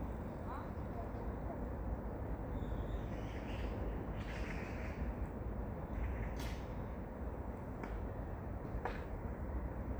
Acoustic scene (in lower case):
park